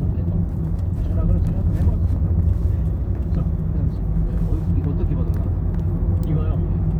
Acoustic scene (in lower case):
car